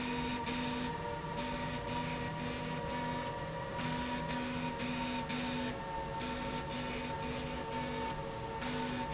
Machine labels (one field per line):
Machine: slide rail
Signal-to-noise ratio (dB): -6 dB